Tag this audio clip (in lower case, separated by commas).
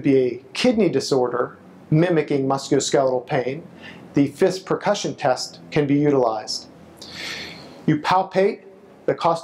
speech